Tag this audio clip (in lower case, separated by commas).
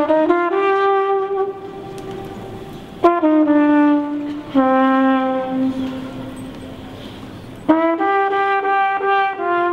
music, inside a large room or hall, musical instrument